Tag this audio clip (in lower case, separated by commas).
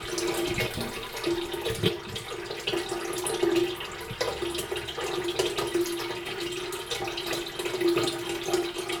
fill (with liquid), pour, dribble, liquid